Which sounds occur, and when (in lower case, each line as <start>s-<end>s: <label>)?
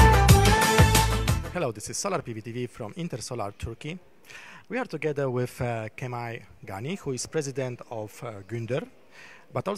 0.0s-1.4s: music
0.0s-9.7s: background noise
1.5s-3.9s: male speech
4.2s-4.6s: breathing
4.6s-6.4s: male speech
6.6s-8.8s: male speech
9.1s-9.5s: breathing
9.5s-9.7s: male speech